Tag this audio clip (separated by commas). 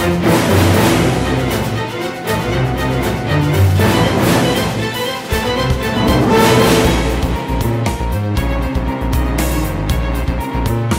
Music